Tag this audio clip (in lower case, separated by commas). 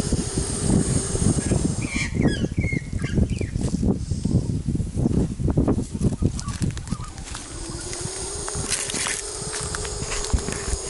snake hissing